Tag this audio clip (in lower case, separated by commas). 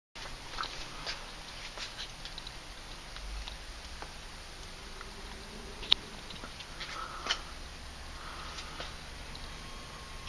inside a small room, silence